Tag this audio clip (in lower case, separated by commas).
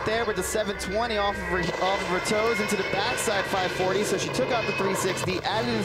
speech